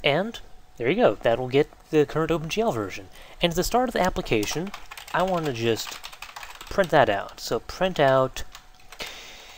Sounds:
Speech

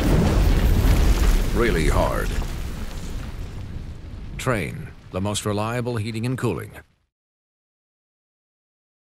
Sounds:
Speech

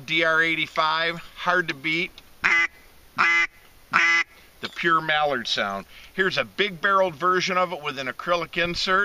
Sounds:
Quack, Speech

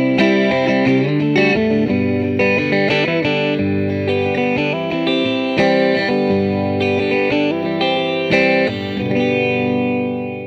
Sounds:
Guitar, Musical instrument, Electric guitar, Plucked string instrument, Music, Strum, Acoustic guitar

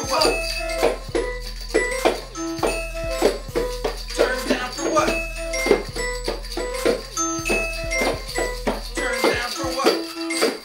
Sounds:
Music

